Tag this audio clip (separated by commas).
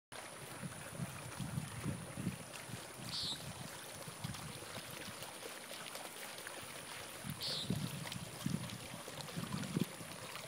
Trickle